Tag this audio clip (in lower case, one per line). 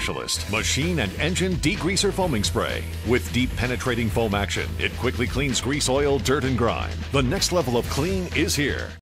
music
speech